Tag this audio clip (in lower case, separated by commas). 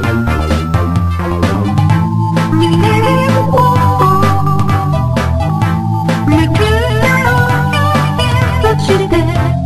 music